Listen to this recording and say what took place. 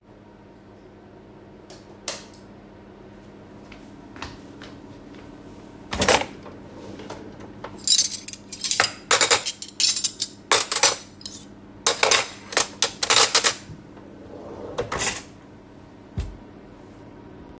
I walked into the kitchen and turned the lights on. You can hear my kitchens fan in the background. I opened the kitchen drawer to look for a spoon, after I found one, I closed the drawer again.